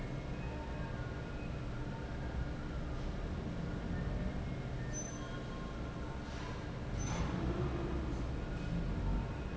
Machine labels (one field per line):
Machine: fan